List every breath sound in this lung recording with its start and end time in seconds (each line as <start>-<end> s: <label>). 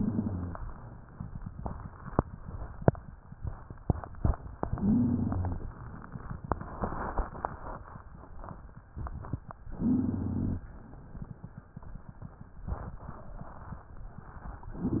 0.00-0.63 s: inhalation
0.00-0.63 s: wheeze
4.69-5.75 s: inhalation
4.69-5.75 s: wheeze
9.73-10.65 s: inhalation
9.73-10.65 s: wheeze